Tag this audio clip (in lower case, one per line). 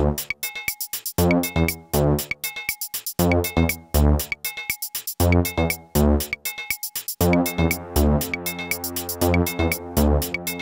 music
sampler